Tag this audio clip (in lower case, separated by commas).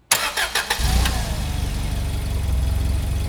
engine